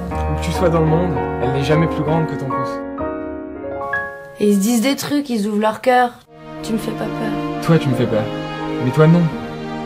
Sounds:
Music, Speech

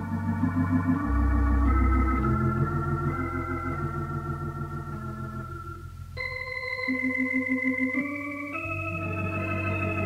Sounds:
Hammond organ, Organ, playing hammond organ

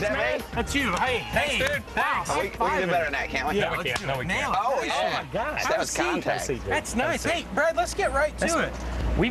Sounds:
Speech, Music

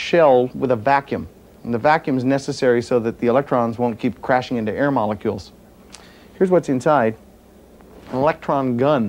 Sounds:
Speech

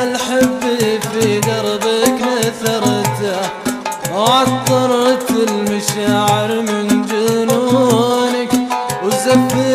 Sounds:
Middle Eastern music, Music

